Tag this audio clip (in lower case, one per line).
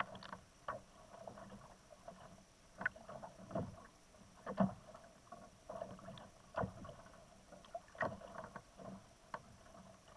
kayak rowing
rowboat
vehicle